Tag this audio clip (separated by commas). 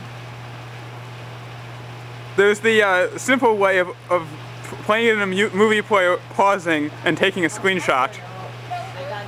Speech